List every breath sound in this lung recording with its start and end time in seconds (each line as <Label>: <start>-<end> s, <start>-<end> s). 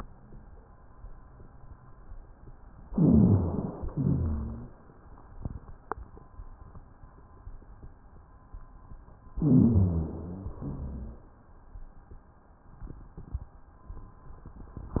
Inhalation: 2.88-3.91 s, 9.39-10.53 s
Exhalation: 3.93-4.67 s, 10.55-11.29 s
Rhonchi: 2.88-3.91 s, 3.93-4.67 s, 9.39-10.53 s, 10.55-11.29 s